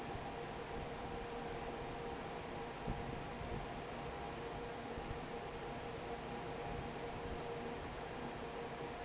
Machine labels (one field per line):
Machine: fan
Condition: normal